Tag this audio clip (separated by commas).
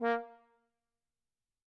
Musical instrument, Brass instrument, Music